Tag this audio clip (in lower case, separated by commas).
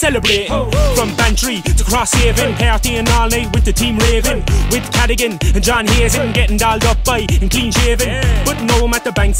music